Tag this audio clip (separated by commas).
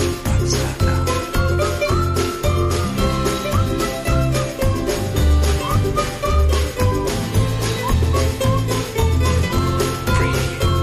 Whistling